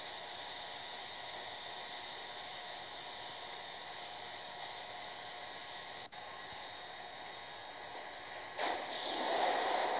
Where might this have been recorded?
on a subway train